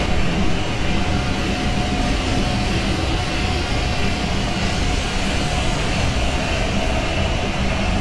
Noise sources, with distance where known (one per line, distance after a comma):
large-sounding engine, near